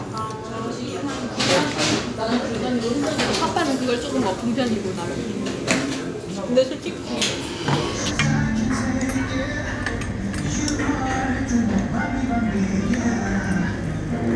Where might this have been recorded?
in a restaurant